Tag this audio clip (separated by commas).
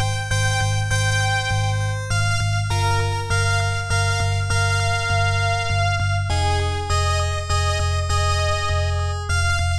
Video game music, Music